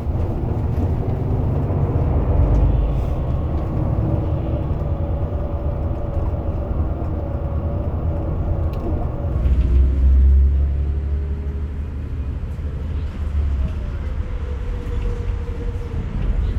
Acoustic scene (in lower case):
bus